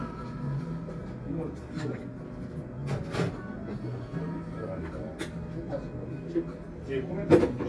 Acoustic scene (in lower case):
cafe